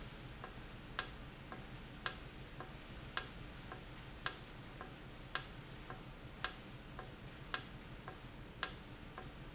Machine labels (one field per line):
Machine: valve